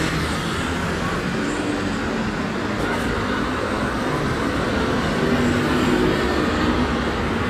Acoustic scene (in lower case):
street